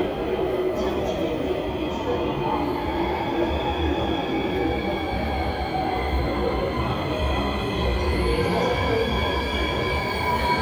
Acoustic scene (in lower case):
subway station